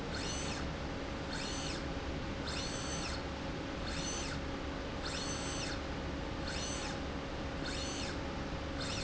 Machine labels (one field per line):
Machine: slide rail